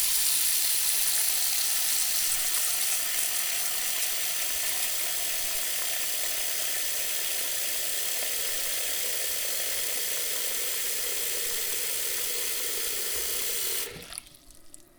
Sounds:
sink (filling or washing), domestic sounds

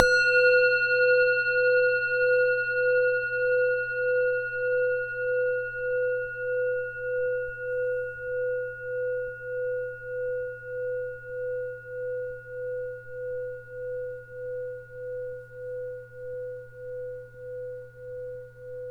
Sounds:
music, musical instrument

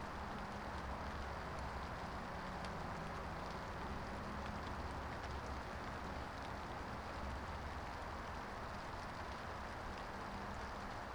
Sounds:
rain, water

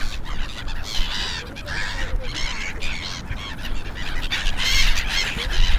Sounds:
animal

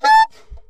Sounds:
music, musical instrument, wind instrument

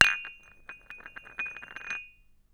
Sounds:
domestic sounds, dishes, pots and pans

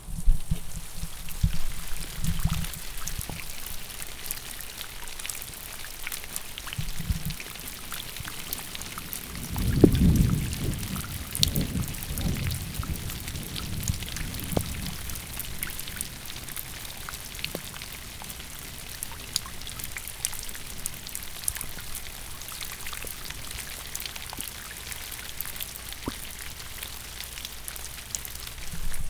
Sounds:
thunder, thunderstorm

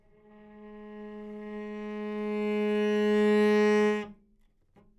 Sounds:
musical instrument, bowed string instrument, music

